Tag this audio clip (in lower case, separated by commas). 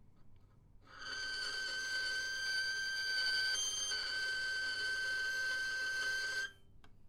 music, bowed string instrument, musical instrument